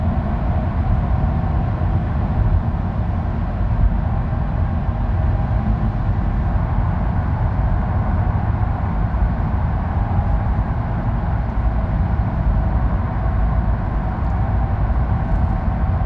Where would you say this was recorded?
in a car